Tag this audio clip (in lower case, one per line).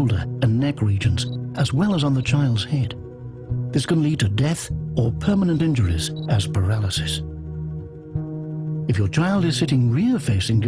music
speech